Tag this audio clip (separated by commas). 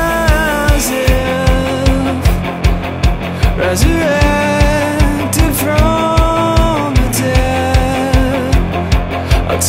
Music, Orchestra